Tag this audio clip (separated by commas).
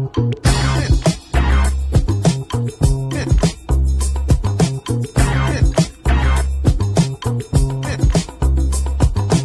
Music